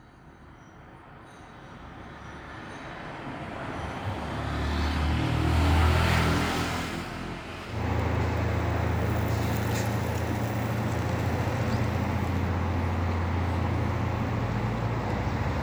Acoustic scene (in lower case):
street